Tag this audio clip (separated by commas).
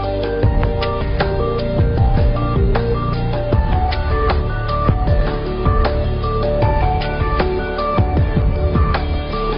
Music